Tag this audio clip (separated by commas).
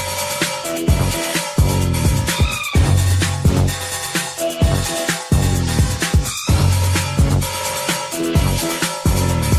Music